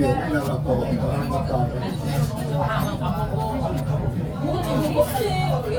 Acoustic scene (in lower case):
restaurant